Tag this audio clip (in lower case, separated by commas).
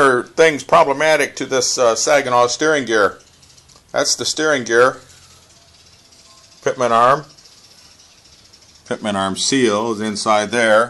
inside a small room, speech